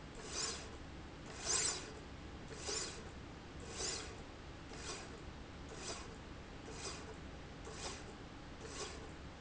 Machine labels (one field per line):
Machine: slide rail